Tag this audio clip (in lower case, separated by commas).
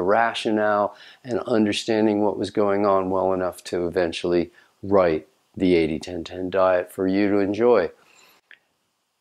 speech, inside a small room